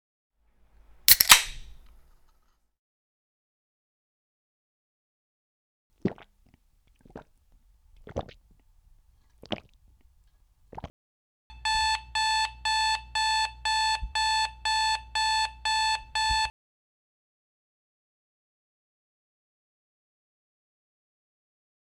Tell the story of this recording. Phone left on kitchen counter. Cutlery and bowls taken from drawer, coffee machine started, phone rang once while coffee was brewing.